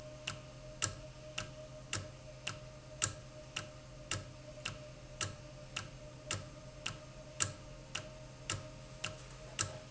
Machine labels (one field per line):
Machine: valve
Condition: normal